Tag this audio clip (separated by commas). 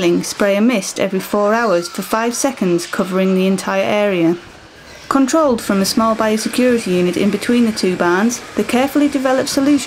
Speech